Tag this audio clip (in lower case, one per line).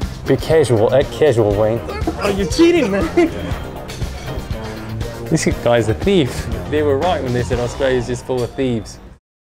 music
speech